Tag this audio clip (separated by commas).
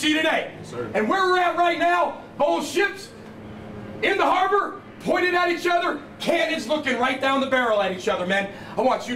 Male speech, Speech